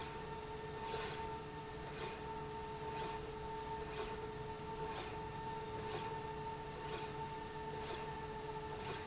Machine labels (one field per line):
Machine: slide rail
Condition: normal